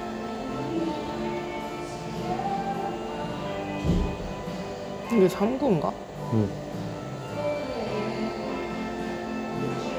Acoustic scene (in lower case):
cafe